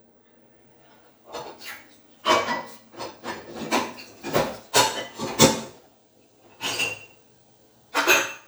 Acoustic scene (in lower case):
kitchen